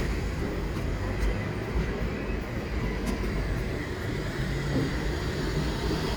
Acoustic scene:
street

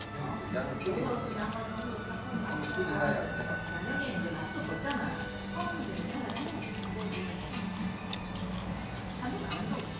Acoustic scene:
restaurant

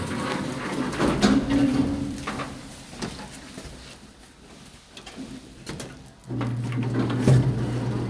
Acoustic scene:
elevator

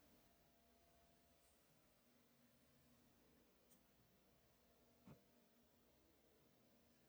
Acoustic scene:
elevator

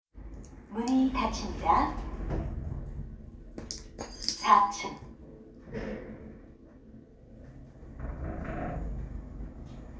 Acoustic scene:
elevator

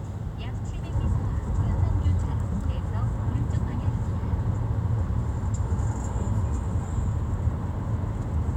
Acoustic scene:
car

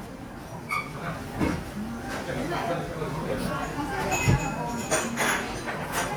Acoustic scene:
restaurant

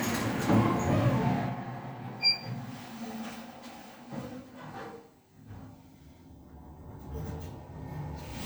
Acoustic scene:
elevator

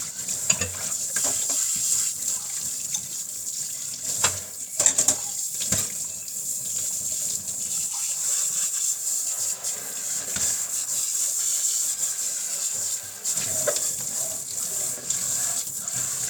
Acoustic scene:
kitchen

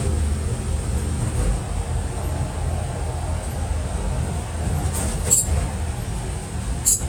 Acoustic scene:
bus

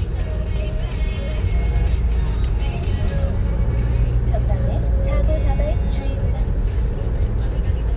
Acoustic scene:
car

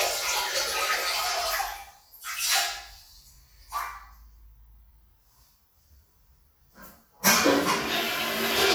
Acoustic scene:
restroom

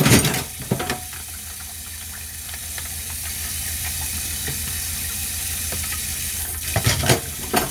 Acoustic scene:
kitchen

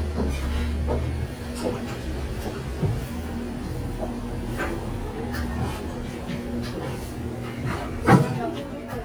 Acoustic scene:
cafe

